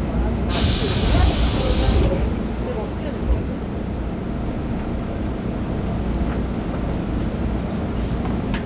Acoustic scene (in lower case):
subway train